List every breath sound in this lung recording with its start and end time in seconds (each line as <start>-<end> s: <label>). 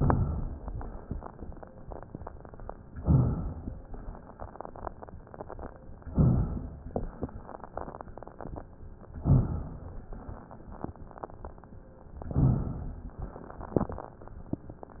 2.92-3.65 s: inhalation
3.63-4.36 s: exhalation
6.10-6.86 s: inhalation
6.81-7.68 s: exhalation
9.16-10.04 s: inhalation
10.01-10.65 s: exhalation
12.25-13.17 s: inhalation
13.18-14.24 s: exhalation